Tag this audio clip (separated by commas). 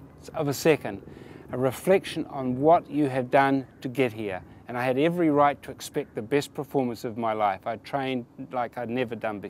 Speech, outside, urban or man-made